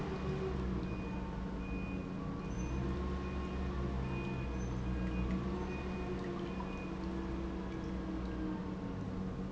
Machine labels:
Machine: pump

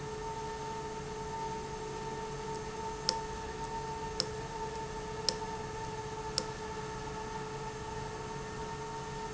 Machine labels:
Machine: valve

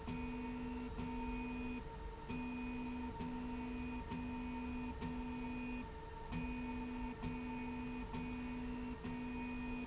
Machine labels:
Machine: slide rail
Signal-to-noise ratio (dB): 6 dB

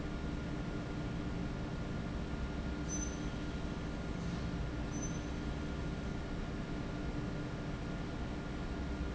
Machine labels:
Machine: fan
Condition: normal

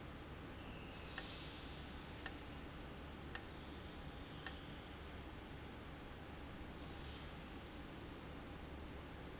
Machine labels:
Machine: valve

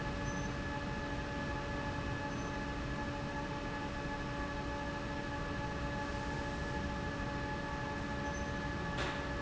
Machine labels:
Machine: fan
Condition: normal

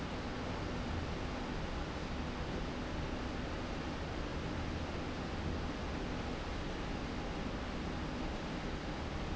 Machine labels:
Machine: slide rail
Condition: normal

